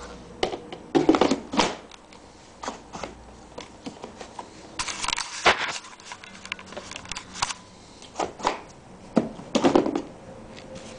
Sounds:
inside a small room

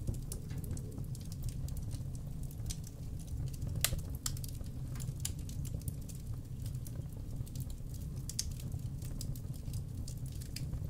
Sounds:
fire crackling

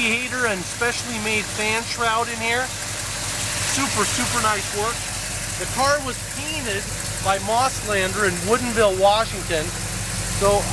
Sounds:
speech
vehicle
medium engine (mid frequency)

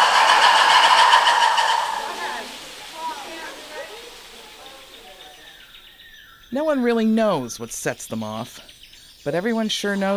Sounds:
speech

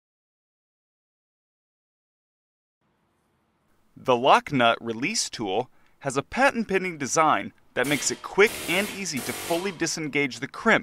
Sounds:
tools
speech

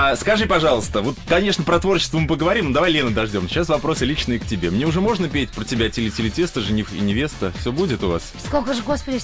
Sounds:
music
speech
radio

